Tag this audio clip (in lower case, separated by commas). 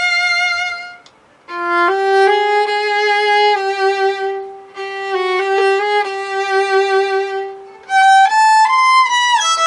musical instrument, fiddle, music